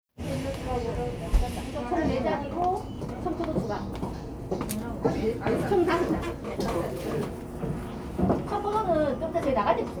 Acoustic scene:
cafe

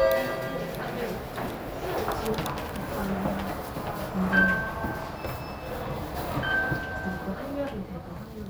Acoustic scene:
elevator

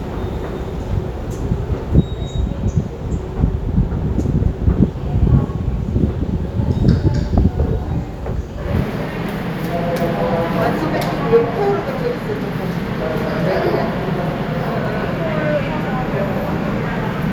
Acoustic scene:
subway station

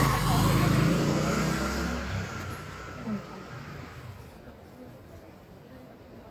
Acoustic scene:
street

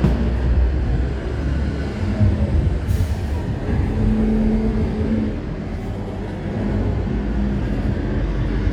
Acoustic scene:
residential area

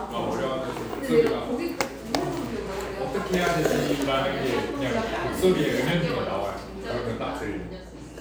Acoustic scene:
cafe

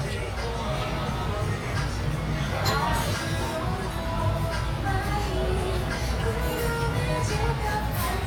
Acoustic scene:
restaurant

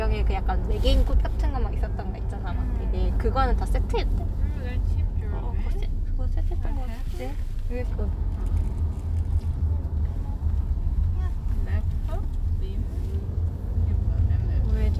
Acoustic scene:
car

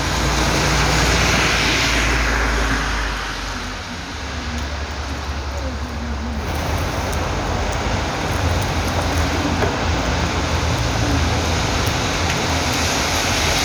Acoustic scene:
street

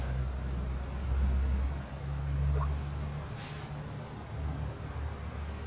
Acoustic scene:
residential area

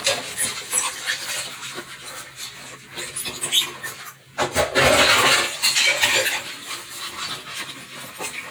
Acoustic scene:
kitchen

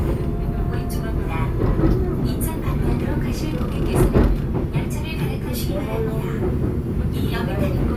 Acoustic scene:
subway train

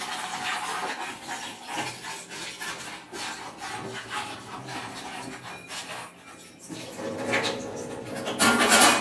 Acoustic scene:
kitchen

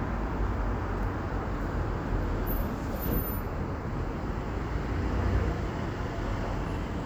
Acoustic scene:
street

